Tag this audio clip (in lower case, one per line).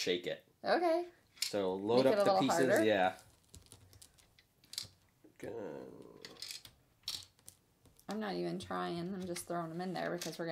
inside a small room
speech